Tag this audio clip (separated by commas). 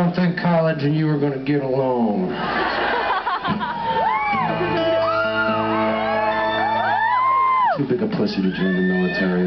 man speaking, Speech, Music